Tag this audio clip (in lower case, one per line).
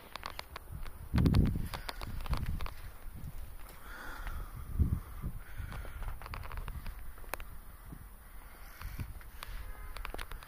reversing beeps